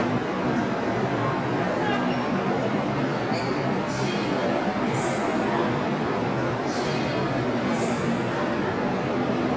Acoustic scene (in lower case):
subway station